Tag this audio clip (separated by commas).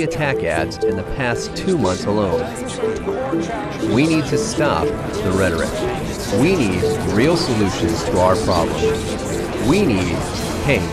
Music, Speech